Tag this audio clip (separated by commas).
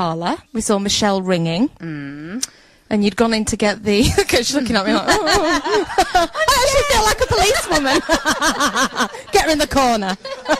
Radio, Speech